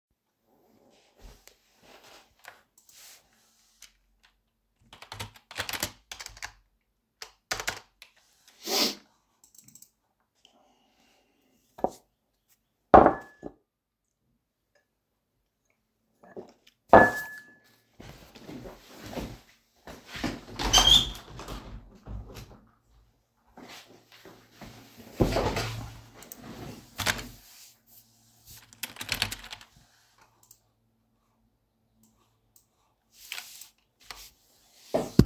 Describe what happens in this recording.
I worked on the computer, then took a sip of coffee. After that, I opened the window and finally got back to work.